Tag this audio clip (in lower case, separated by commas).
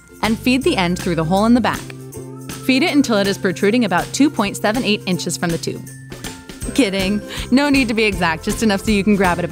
speech, music